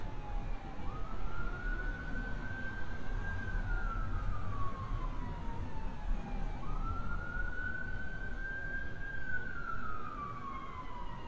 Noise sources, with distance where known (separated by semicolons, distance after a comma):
siren, far